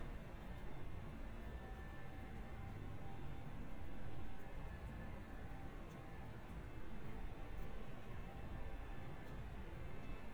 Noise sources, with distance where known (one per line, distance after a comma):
small-sounding engine